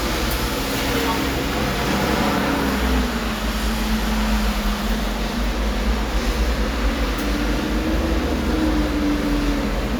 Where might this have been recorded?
in an elevator